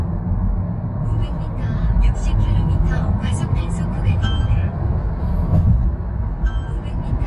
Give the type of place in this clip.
car